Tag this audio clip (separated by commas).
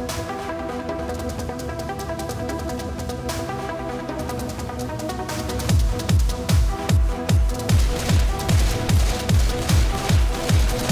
Music